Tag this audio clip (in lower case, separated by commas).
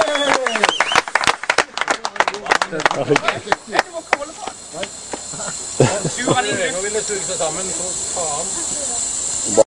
speech